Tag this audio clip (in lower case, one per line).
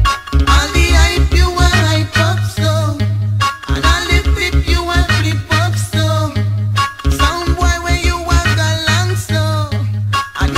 music